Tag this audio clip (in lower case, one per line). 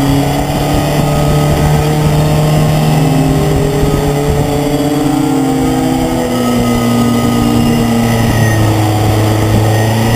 vehicle